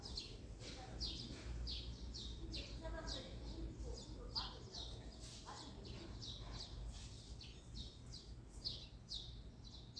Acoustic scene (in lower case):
residential area